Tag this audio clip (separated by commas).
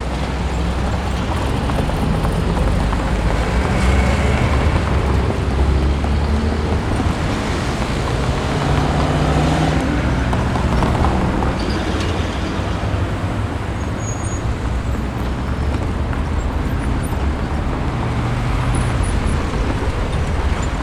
Motor vehicle (road), Bus, Vehicle